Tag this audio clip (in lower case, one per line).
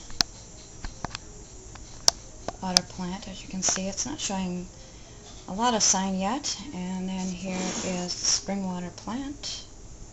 speech